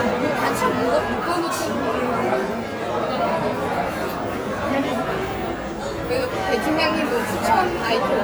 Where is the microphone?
in a crowded indoor space